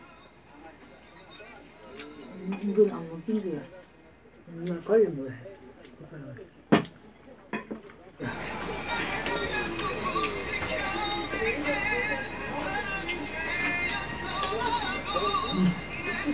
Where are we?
in a restaurant